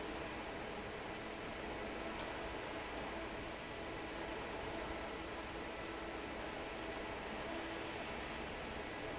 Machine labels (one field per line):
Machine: fan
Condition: normal